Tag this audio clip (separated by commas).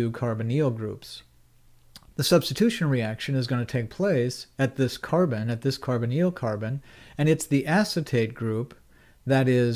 Speech